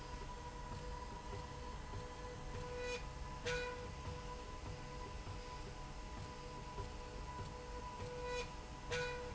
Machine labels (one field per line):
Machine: slide rail